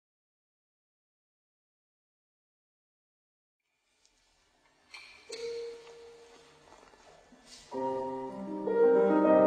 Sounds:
Piano, Keyboard (musical)

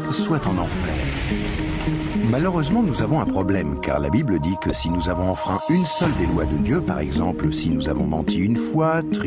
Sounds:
Speech, Music

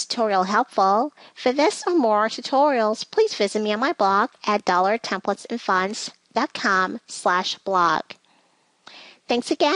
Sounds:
Narration

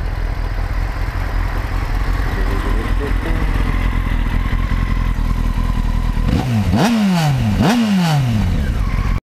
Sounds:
Clatter

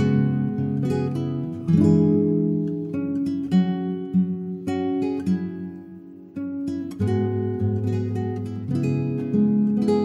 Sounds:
Acoustic guitar, Strum, Guitar, Music, Musical instrument, Plucked string instrument

